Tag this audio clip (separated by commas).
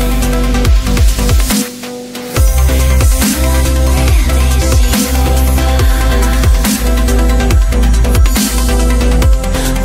Music, Exciting music